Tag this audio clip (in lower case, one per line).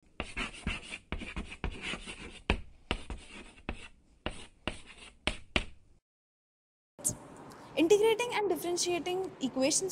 writing
speech